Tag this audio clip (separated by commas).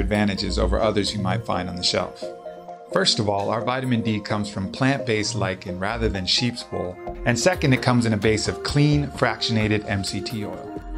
Music, Speech